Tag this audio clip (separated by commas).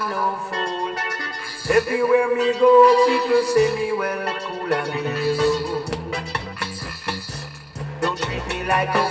Music